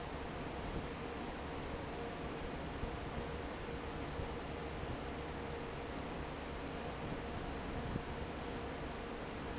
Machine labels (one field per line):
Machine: fan